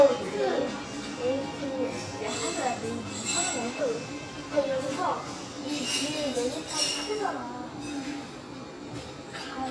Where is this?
in a restaurant